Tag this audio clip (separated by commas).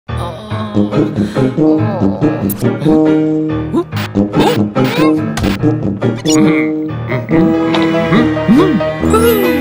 inside a small room, Music